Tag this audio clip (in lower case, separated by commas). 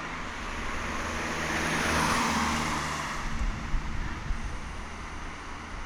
vehicle, motor vehicle (road), car